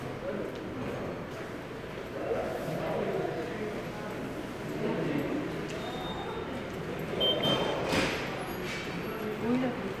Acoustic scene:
subway station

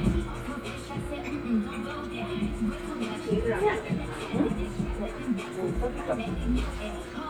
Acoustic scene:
restaurant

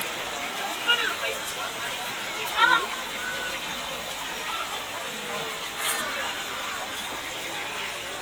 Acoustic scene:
park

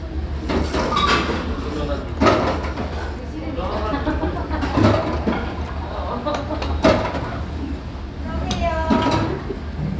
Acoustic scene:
restaurant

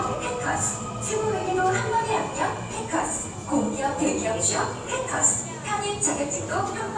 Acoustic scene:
subway station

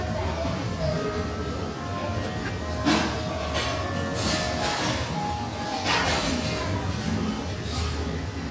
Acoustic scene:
cafe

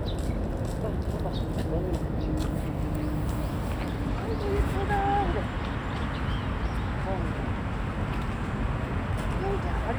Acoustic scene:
residential area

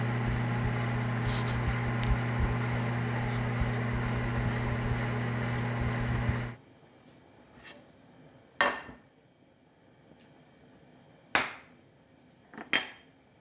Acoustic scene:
kitchen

